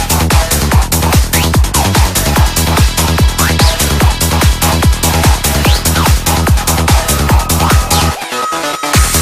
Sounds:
music, dubstep

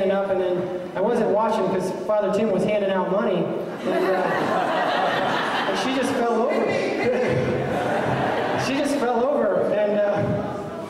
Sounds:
speech

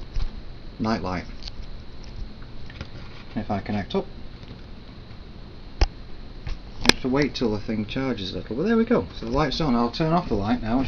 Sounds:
inside a small room, speech

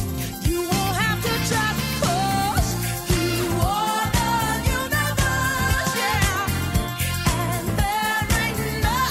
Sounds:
singing, music

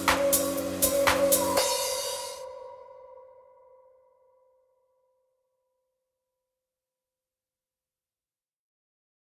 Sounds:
electronic music, music

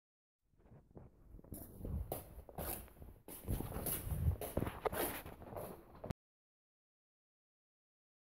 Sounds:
shuffle

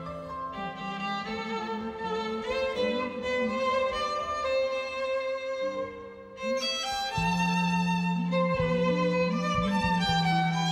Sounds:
fiddle, music, musical instrument

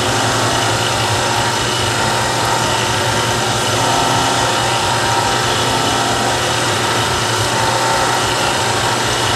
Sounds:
mechanisms, pawl

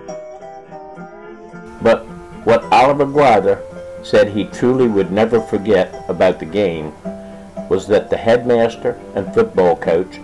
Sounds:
banjo, music, speech

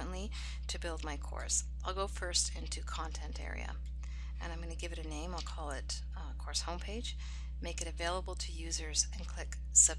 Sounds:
speech

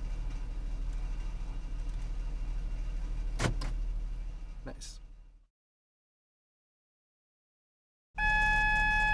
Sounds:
speech

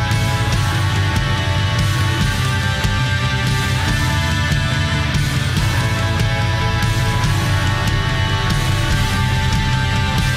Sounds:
music

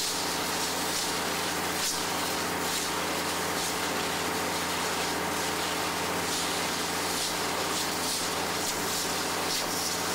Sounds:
steam

